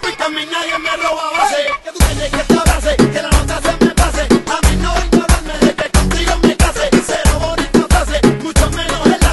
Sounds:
music

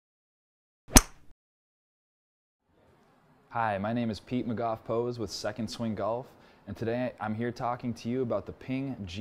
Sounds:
speech

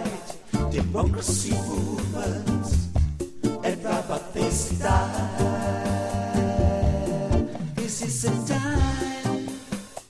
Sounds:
music, jingle (music)

